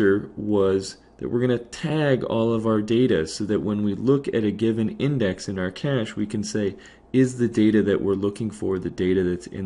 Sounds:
speech

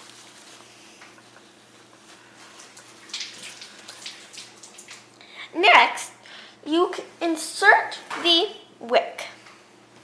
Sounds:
bathtub (filling or washing)
speech

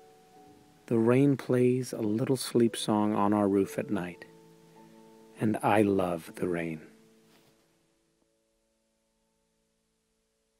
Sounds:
speech

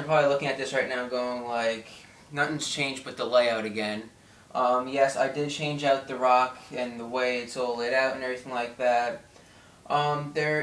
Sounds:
speech

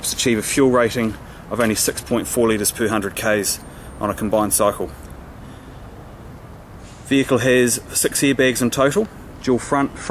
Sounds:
speech

